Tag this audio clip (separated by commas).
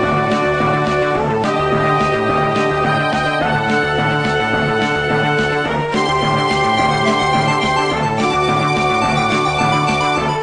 Theme music, Video game music, Music